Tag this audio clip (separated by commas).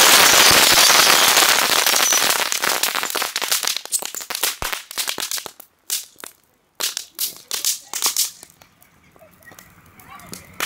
fire crackling, Crackle, Fireworks